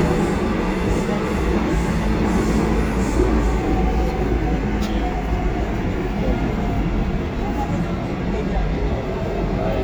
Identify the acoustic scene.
subway train